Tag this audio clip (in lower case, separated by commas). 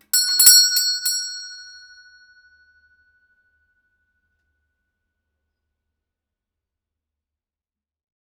alarm, bell, doorbell, door, domestic sounds